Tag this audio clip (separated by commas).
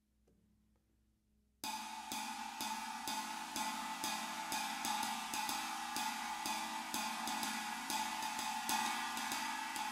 Music